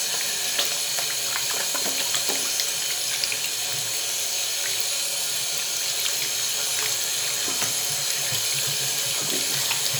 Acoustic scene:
restroom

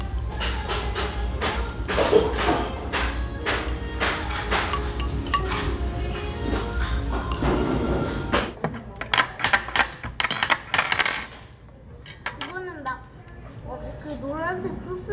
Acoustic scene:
restaurant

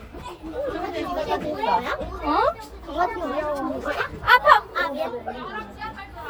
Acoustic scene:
park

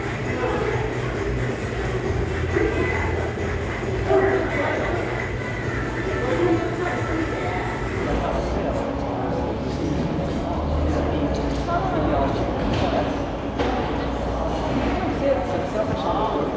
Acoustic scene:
crowded indoor space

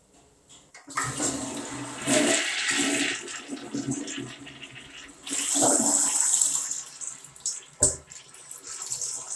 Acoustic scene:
restroom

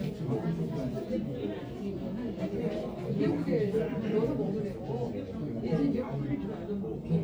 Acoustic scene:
crowded indoor space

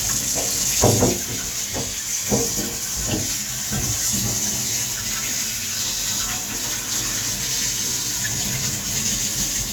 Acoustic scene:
kitchen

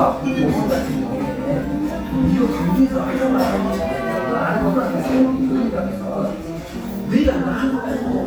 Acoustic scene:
cafe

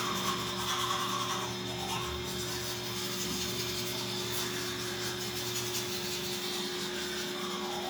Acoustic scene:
restroom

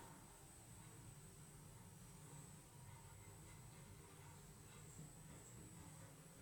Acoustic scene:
elevator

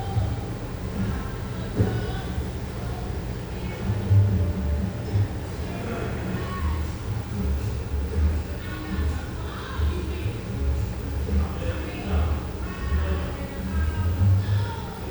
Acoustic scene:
cafe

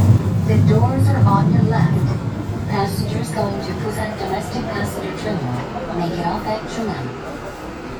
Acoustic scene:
subway train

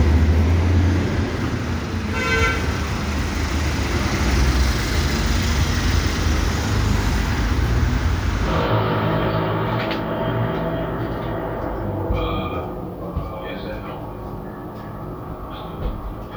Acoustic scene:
street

